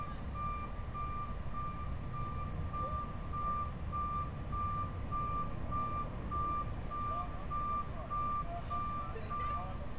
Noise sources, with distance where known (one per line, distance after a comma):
reverse beeper, near